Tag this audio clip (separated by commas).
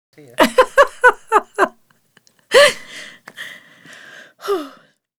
Giggle, Human voice, Laughter